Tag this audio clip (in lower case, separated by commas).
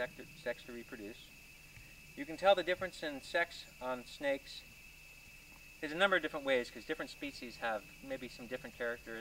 outside, rural or natural, speech